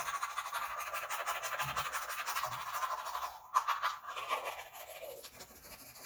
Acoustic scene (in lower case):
restroom